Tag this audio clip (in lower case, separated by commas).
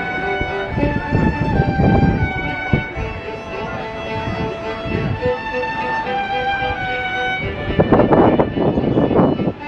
music, fiddle, musical instrument